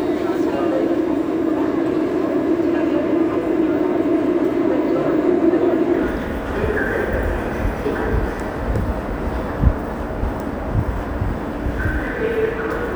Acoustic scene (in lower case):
subway station